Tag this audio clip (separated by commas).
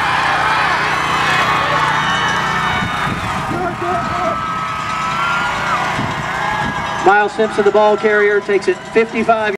Speech